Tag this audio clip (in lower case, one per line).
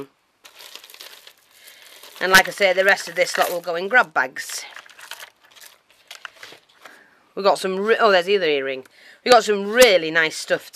speech
inside a small room